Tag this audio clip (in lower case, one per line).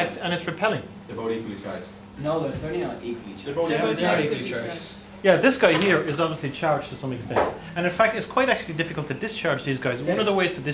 speech